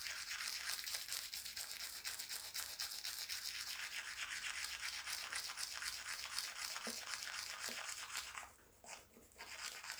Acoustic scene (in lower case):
restroom